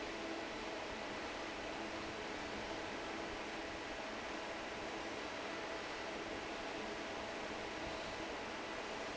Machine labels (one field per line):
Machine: fan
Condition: normal